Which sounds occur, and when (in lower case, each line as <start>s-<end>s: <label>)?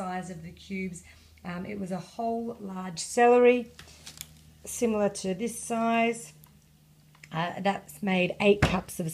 0.0s-1.1s: female speech
0.0s-9.1s: mechanisms
1.1s-1.3s: breathing
1.3s-1.4s: clicking
1.4s-3.7s: female speech
3.7s-4.4s: generic impact sounds
4.6s-6.4s: female speech
6.4s-6.6s: clicking
7.1s-7.3s: clicking
7.2s-9.1s: female speech
8.6s-8.7s: tap